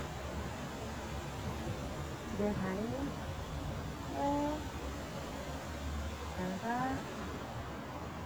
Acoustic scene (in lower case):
residential area